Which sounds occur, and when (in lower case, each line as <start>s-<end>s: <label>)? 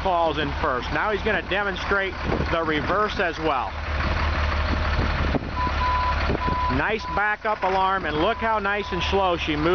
0.0s-9.7s: truck
6.7s-9.7s: male speech
7.9s-8.4s: wind noise (microphone)
8.8s-9.2s: reversing beeps